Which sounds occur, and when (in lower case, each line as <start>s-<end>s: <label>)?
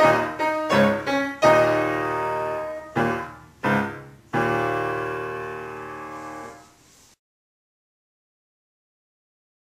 0.0s-6.7s: music
0.0s-7.1s: background noise